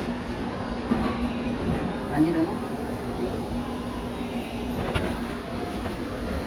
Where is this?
in a crowded indoor space